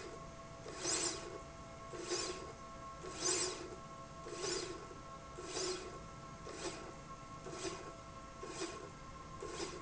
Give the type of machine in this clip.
slide rail